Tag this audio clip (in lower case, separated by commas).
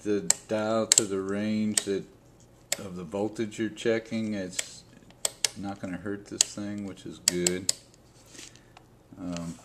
speech